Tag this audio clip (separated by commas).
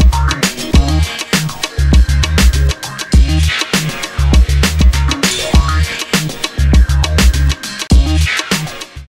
Music